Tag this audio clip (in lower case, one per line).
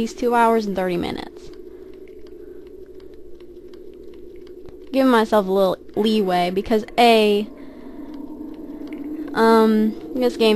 speech